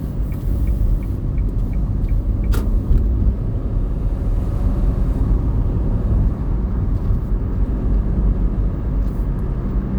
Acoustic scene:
car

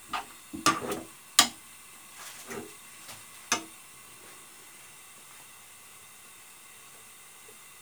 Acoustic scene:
kitchen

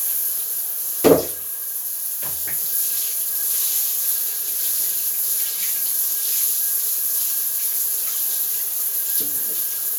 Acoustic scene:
restroom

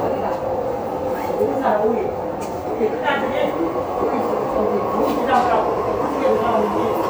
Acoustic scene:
subway station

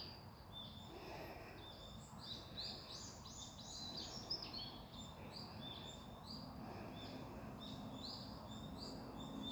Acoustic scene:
park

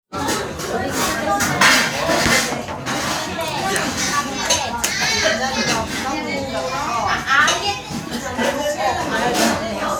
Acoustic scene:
restaurant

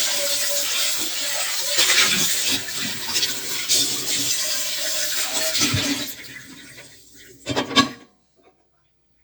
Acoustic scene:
kitchen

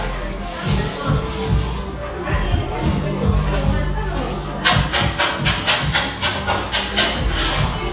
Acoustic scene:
cafe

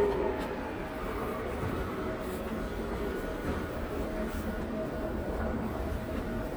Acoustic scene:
subway station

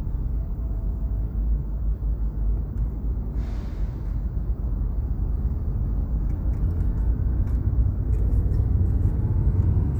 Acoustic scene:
car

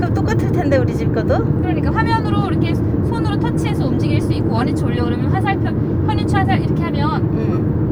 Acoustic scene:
car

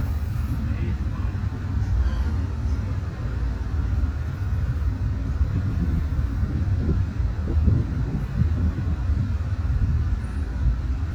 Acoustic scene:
residential area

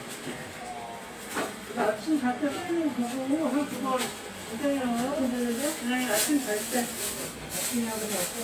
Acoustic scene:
crowded indoor space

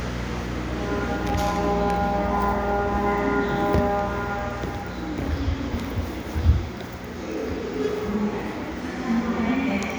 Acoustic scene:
subway station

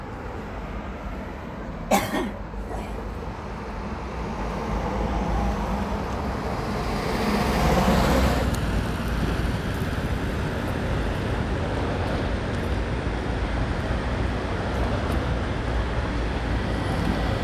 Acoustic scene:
street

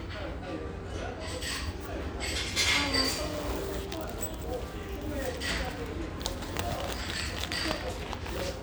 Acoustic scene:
restaurant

